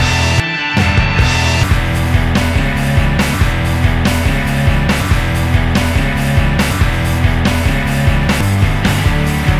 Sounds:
music

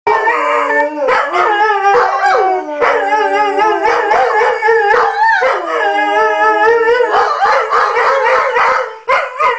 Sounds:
inside a small room, domestic animals, animal, howl, dog

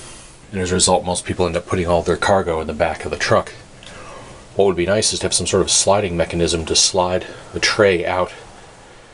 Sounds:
speech

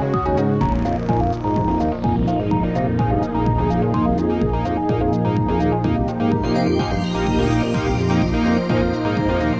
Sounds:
music

